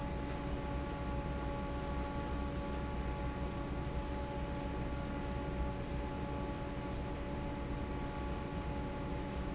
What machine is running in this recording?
fan